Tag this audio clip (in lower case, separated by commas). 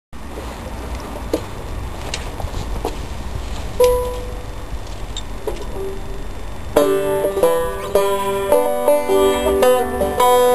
bowed string instrument, plucked string instrument, musical instrument, banjo, music